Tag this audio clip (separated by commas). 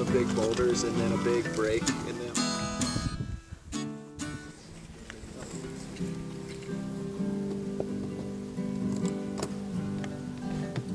Music, Speech